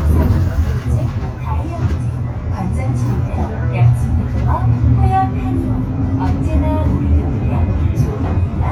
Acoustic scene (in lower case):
bus